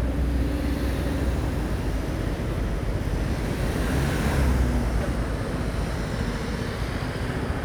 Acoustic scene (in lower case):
street